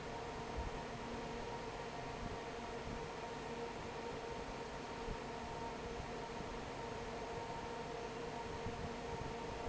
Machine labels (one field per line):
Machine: fan